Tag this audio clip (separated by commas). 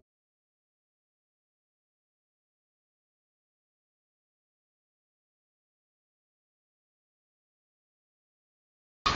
outside, urban or man-made, Silence